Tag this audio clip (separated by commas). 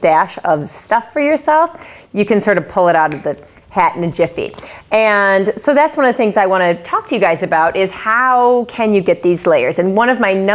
Speech